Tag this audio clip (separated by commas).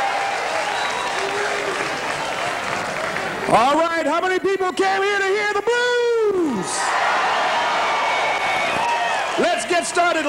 Speech